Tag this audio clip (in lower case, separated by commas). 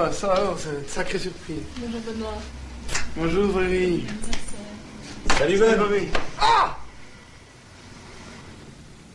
speech